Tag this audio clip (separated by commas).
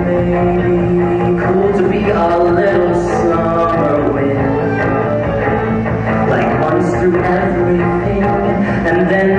Music